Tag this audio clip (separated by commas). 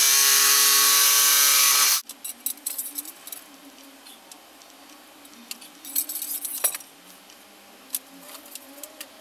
Power tool, Tools, Drill